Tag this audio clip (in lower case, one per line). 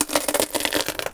crushing